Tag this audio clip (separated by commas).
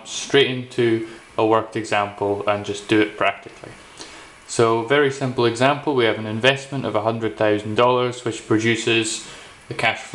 Speech